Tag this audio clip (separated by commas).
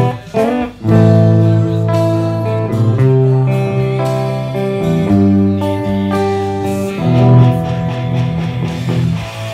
Guitar, Rock music, Music, Heavy metal